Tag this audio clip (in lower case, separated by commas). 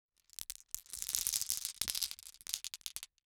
glass